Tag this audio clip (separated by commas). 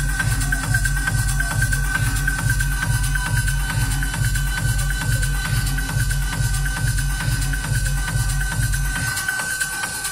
Electronic music, Music, Techno